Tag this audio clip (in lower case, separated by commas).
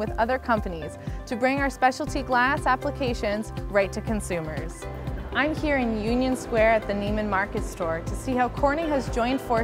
music, speech